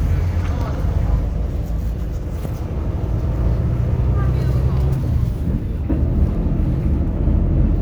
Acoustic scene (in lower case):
bus